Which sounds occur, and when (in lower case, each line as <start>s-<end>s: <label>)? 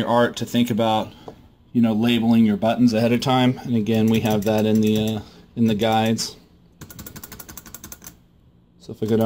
0.0s-9.2s: background noise
1.2s-1.4s: tap
2.3s-2.4s: generic impact sounds
5.1s-5.4s: breathing
9.0s-9.2s: computer keyboard